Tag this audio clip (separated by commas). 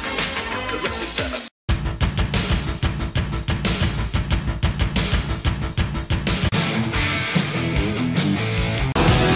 Music, Rustle